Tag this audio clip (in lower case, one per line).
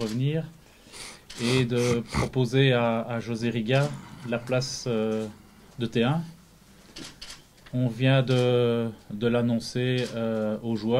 speech